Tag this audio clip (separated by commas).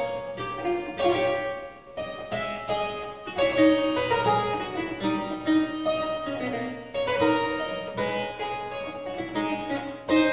Music, playing harpsichord, Harpsichord